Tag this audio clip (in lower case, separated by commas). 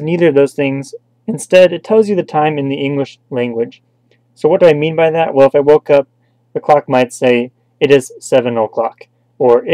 speech